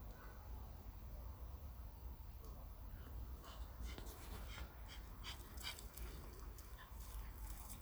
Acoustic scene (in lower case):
park